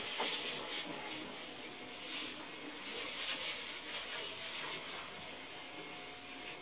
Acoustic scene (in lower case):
subway train